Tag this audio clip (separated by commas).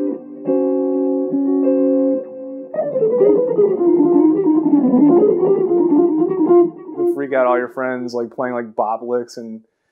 Guitar, inside a small room, Music, Bass guitar, Speech, Plucked string instrument, Musical instrument